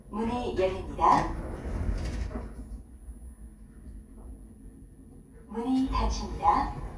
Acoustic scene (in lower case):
elevator